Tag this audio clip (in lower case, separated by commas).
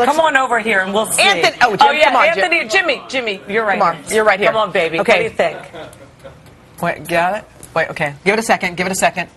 speech, spray